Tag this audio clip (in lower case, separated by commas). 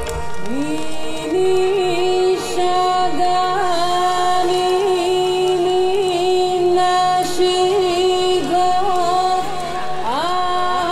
music